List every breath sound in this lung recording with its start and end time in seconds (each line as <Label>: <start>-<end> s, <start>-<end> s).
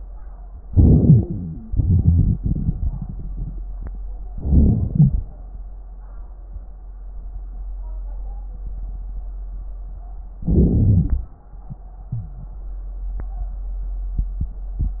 Inhalation: 0.64-1.68 s, 4.31-4.94 s, 10.43-10.72 s
Exhalation: 1.68-3.00 s, 4.96-5.37 s, 10.71-11.34 s
Wheeze: 1.17-1.68 s
Crackles: 1.68-3.00 s, 4.31-4.94 s, 10.44-11.34 s